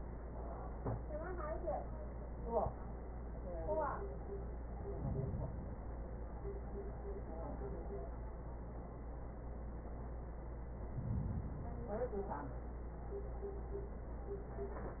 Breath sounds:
4.62-6.12 s: inhalation
10.70-12.20 s: inhalation

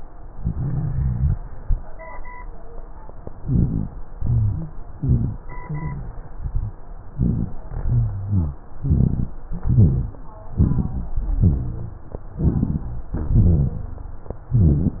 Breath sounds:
0.34-1.37 s: inhalation
0.34-1.37 s: rhonchi
3.38-3.89 s: inhalation
3.38-3.89 s: rhonchi
4.17-4.69 s: exhalation
4.17-4.69 s: rhonchi
4.99-5.41 s: inhalation
4.99-5.41 s: rhonchi
5.64-6.19 s: exhalation
5.64-6.19 s: rhonchi
6.38-6.81 s: rhonchi
7.13-7.57 s: inhalation
7.13-7.57 s: rhonchi
7.86-8.60 s: exhalation
7.86-8.60 s: rhonchi
8.86-9.37 s: inhalation
8.86-9.37 s: rhonchi
9.51-10.23 s: exhalation
9.51-10.23 s: rhonchi
10.55-11.16 s: inhalation
10.55-11.16 s: rhonchi
11.20-12.05 s: exhalation
11.20-12.05 s: rhonchi
12.39-13.11 s: inhalation
12.39-13.11 s: rhonchi
13.17-13.89 s: exhalation
13.17-13.89 s: rhonchi
14.52-15.00 s: inhalation
14.52-15.00 s: rhonchi

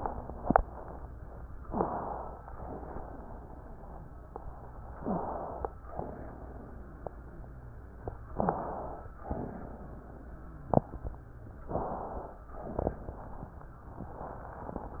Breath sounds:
1.63-1.92 s: wheeze
1.63-2.44 s: inhalation
2.48-4.86 s: exhalation
2.48-4.86 s: wheeze
4.94-5.26 s: wheeze
4.94-5.69 s: inhalation
5.83-8.25 s: exhalation
5.83-8.25 s: wheeze
8.30-8.63 s: wheeze
8.30-9.05 s: inhalation
9.21-11.63 s: exhalation
9.21-11.63 s: wheeze
11.71-12.40 s: inhalation
12.52-13.77 s: exhalation

